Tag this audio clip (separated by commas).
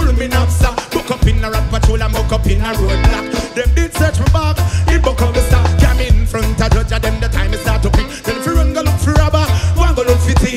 Pop music, Music, Jazz